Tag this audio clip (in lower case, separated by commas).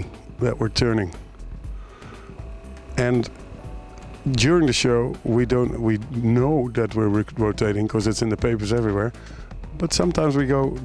music, speech